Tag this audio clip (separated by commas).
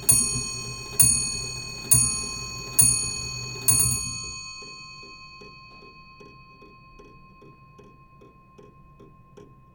Mechanisms, Clock